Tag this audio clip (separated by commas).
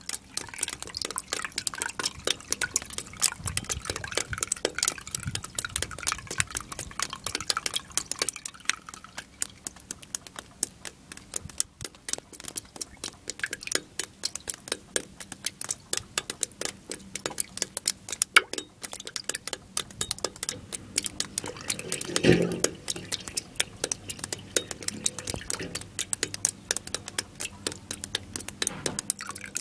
Liquid, Drip